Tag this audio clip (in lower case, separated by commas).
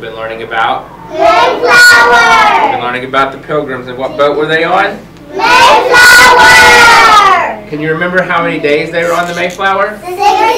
speech